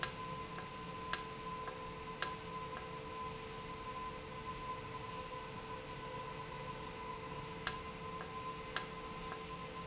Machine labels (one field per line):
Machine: valve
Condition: normal